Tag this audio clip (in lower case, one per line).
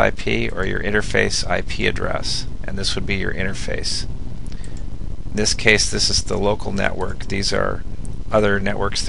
speech